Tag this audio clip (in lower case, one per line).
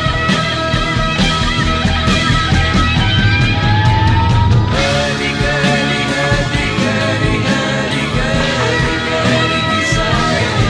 music
psychedelic rock